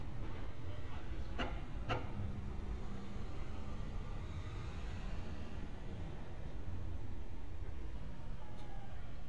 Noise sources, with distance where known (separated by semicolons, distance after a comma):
medium-sounding engine, far; person or small group talking, far; person or small group shouting, far